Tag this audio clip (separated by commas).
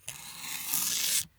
Tearing